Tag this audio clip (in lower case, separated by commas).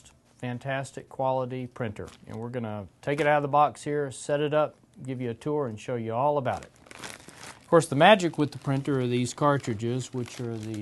speech